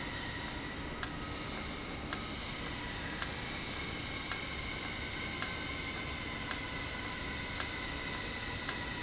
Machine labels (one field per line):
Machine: valve